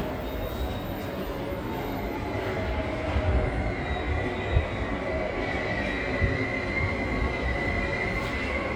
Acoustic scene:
subway station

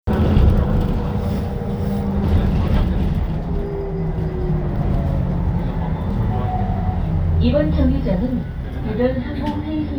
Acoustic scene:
bus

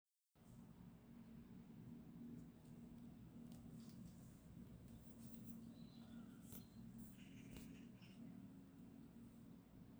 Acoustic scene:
park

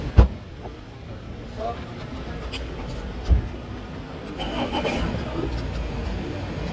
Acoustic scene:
street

